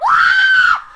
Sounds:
Human voice, Screaming

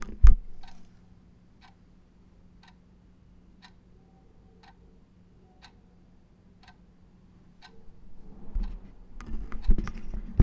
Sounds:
Clock, Mechanisms

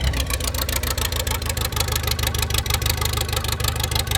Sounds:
Engine

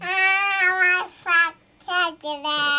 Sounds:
Human voice, Speech

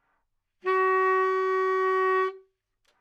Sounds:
Music, Musical instrument, woodwind instrument

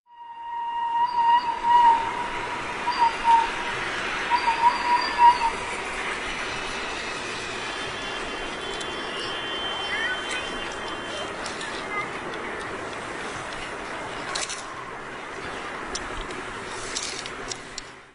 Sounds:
Train, Vehicle, Rail transport

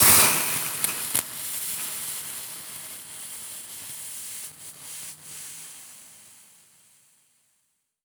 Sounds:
Hiss

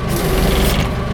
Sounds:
Engine, Mechanisms

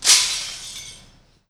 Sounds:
Shatter, Glass

